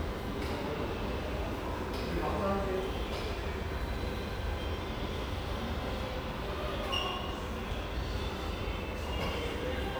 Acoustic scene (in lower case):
subway station